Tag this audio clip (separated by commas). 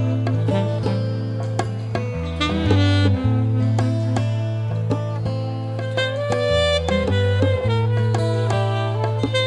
Music, Middle Eastern music